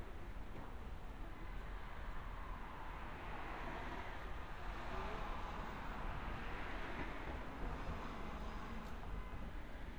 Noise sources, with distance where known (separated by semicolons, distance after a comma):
engine of unclear size